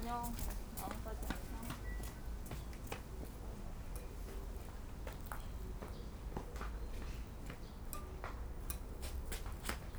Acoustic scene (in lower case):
park